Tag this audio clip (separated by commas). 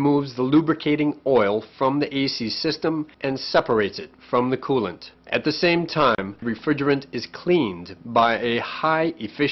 Speech